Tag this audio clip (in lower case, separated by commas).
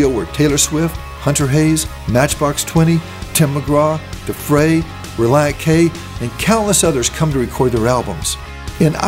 music, speech